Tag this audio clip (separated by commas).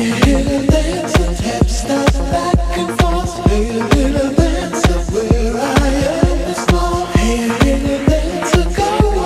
Music